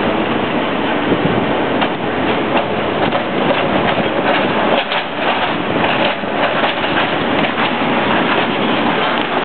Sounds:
Vehicle

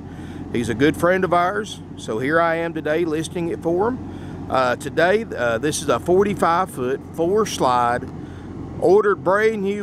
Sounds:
Speech

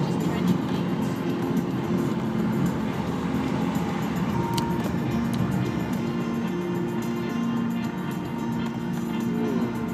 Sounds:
Vehicle, Music

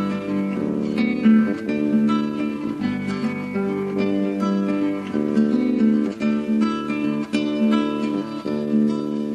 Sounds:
Music, Acoustic guitar

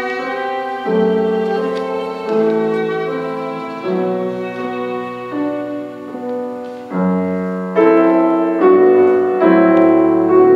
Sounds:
Musical instrument, Music, Violin

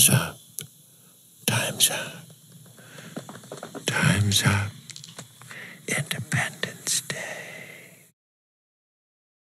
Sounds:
people whispering

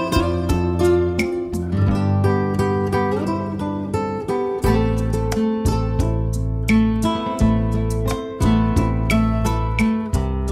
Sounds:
Strum, Musical instrument, Guitar, Plucked string instrument, Music

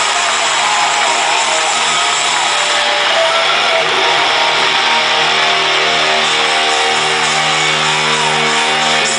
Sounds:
Music, Speech

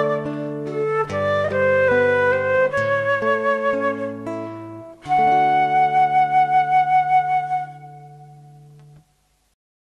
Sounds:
Background music, Music

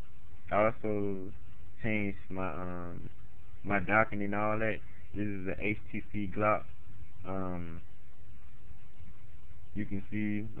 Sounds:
Speech

